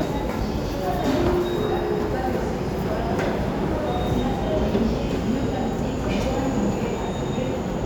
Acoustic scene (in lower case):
subway station